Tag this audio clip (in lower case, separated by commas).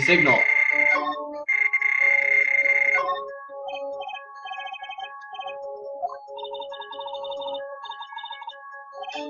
speech, music